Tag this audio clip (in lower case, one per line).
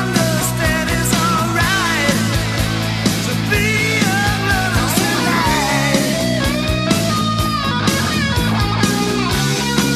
heavy metal
music